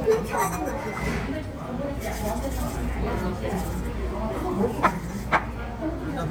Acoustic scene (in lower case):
restaurant